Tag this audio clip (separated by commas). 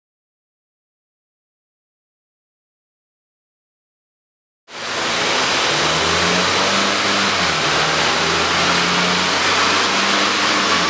Silence, inside a small room, Vehicle, Car